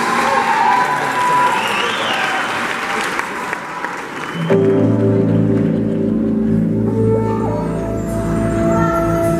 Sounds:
Applause, Speech, Keyboard (musical), Musical instrument, Music

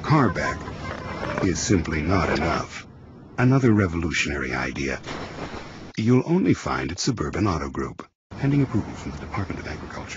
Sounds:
Speech

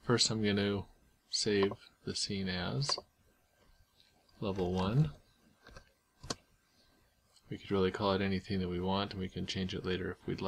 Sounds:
Speech

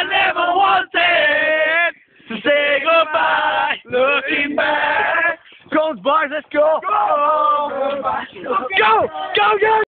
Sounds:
Male singing

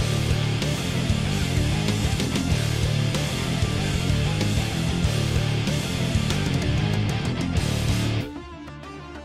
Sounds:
Music

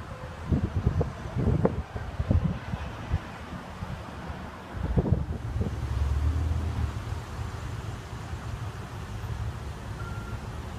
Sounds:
Vehicle

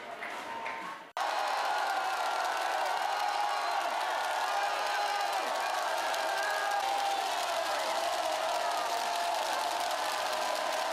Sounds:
people cheering

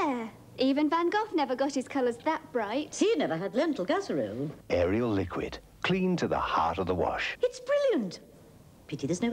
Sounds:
Speech

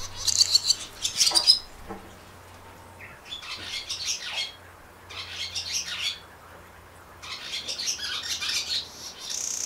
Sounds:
barn swallow calling

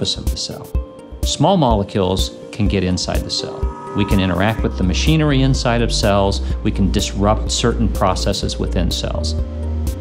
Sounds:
Speech, Music

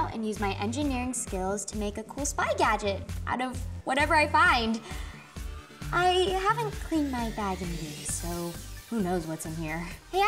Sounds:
Music, Speech, Sound effect

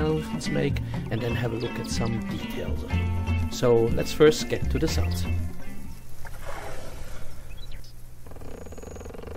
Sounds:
Speech, Wild animals, Music, Animal

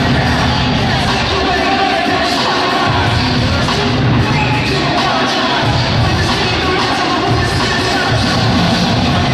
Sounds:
Music, Speech

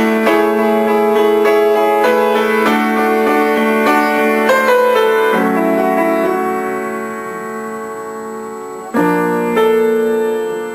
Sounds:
Music

